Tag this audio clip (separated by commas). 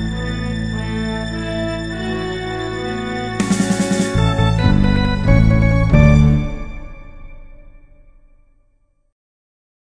Music